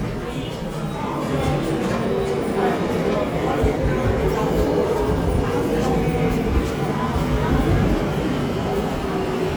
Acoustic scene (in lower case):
subway station